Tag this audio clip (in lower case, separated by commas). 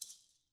rattle (instrument), musical instrument, percussion, music